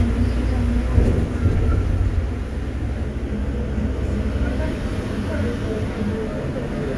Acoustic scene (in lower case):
bus